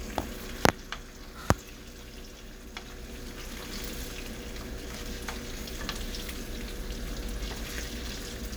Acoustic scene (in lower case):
kitchen